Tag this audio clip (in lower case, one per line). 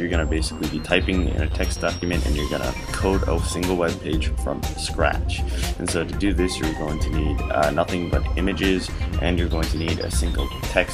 speech
music